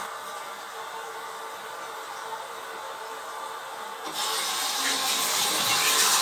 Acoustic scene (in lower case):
restroom